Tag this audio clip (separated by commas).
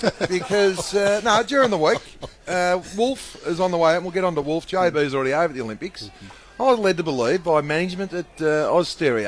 Speech